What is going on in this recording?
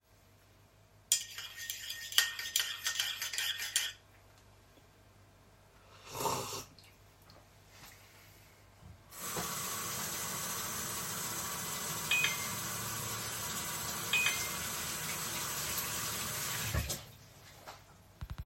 I stirred my tea cup and drank from it, after that I turned on the tap to wash the spoon, and simultaneously I received two notifications.